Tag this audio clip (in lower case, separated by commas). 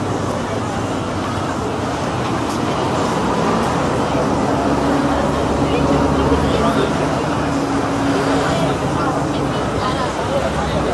speech, outside, urban or man-made, hubbub